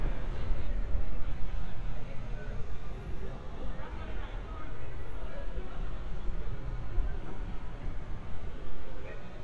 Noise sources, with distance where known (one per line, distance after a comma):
person or small group talking, far